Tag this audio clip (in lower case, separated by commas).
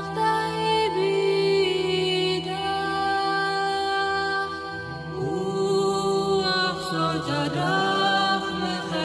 music, mantra